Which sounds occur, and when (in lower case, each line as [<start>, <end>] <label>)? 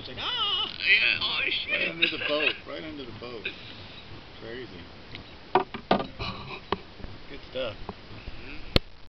[0.00, 0.23] man speaking
[0.00, 8.59] conversation
[0.00, 9.03] wind
[0.00, 9.12] water
[0.11, 0.68] human voice
[0.60, 0.76] generic impact sounds
[0.77, 2.48] man speaking
[1.98, 2.48] laughter
[2.65, 3.39] man speaking
[3.38, 3.53] human voice
[3.51, 3.81] breathing
[3.92, 4.03] squeal
[4.35, 4.84] man speaking
[5.07, 5.18] tick
[5.51, 5.75] generic impact sounds
[5.88, 6.05] generic impact sounds
[5.99, 6.11] squeal
[6.15, 6.59] surface contact
[6.65, 6.74] tick
[6.92, 7.06] generic impact sounds
[7.24, 7.72] man speaking
[7.80, 7.93] generic impact sounds
[8.29, 8.58] human voice
[8.70, 8.79] tick